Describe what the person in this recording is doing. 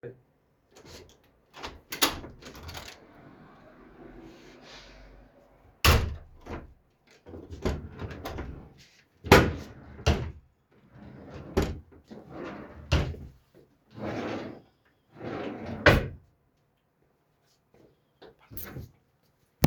I opened wardrobe multiple times in hurry to find some species.